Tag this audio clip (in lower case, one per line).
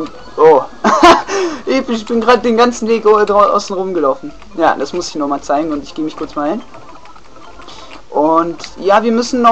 speech